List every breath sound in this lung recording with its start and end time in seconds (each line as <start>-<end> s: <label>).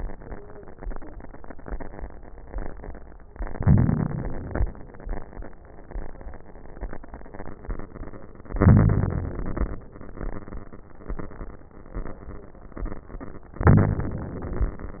3.46-4.63 s: inhalation
8.61-9.78 s: inhalation
13.64-14.82 s: inhalation